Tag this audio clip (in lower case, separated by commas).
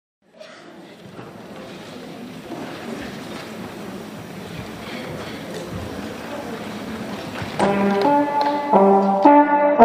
music, inside a large room or hall